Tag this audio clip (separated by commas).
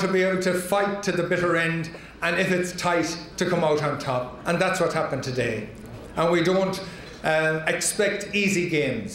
Speech, man speaking